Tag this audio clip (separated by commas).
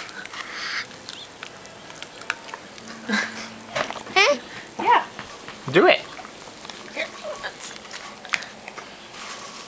Speech